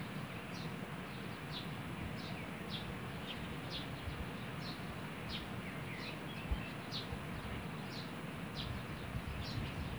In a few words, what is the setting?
park